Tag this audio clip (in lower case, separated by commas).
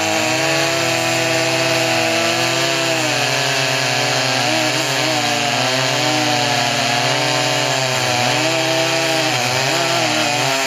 chainsaw, chainsawing trees